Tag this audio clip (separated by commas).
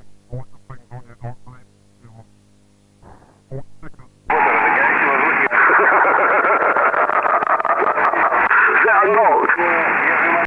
Speech, Radio